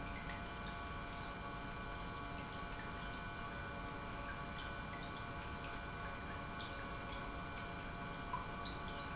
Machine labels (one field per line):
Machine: pump